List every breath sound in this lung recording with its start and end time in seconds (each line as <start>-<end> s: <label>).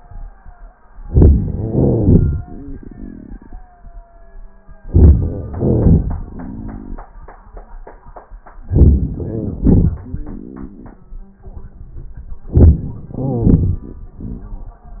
0.84-1.70 s: inhalation
1.72-4.66 s: exhalation
4.71-5.47 s: inhalation
5.46-8.40 s: exhalation
8.41-9.15 s: inhalation
9.15-11.38 s: exhalation
12.44-13.11 s: inhalation
13.14-14.99 s: exhalation